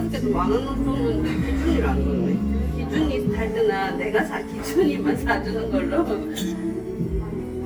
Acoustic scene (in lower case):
crowded indoor space